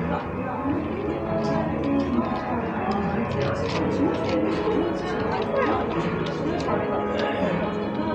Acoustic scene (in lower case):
cafe